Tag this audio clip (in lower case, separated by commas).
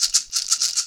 musical instrument, rattle (instrument), percussion, music